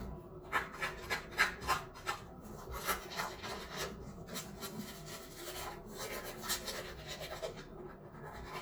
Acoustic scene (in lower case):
restroom